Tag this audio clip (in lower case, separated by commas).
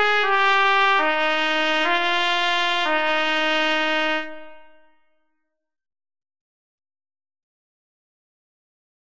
music, trumpet